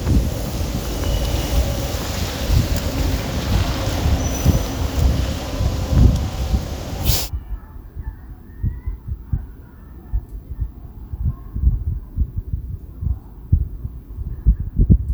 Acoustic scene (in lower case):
residential area